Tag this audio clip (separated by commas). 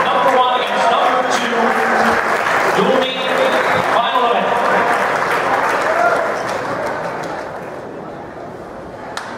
outside, urban or man-made, Speech